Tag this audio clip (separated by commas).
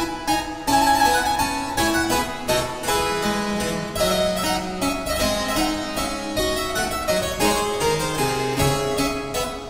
playing harpsichord